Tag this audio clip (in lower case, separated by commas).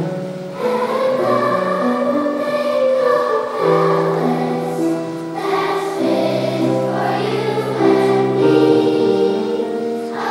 music